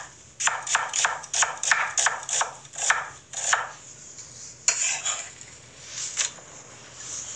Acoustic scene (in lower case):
kitchen